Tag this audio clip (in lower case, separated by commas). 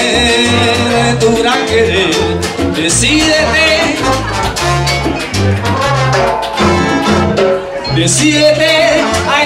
salsa music, music, speech, music of latin america